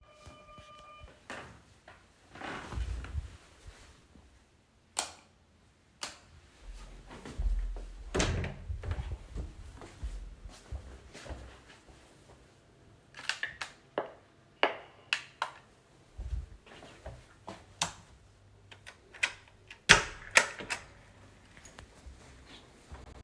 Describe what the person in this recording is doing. I heard the doorbell ringing, got off the bed, flicked on the light switch, opened the bedroom door. In the hallway I pressed the button to stop the bell ringing and then opened the front door.